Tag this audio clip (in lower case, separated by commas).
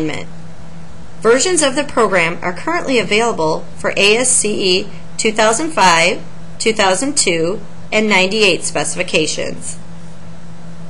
speech